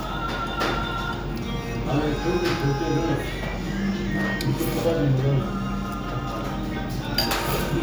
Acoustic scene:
restaurant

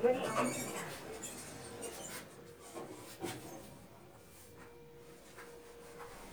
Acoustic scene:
elevator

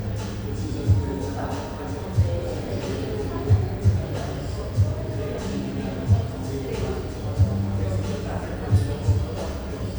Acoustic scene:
cafe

